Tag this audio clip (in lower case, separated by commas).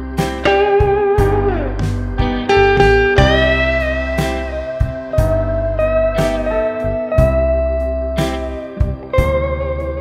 musical instrument, music, strum, blues, plucked string instrument, electric guitar, guitar